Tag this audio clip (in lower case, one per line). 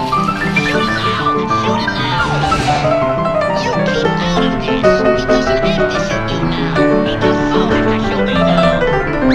music
speech
electric guitar